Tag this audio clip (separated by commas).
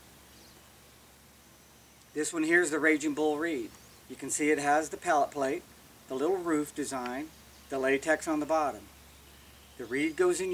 Speech